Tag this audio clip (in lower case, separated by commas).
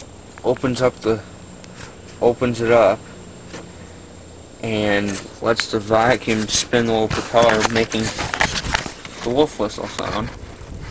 speech, vehicle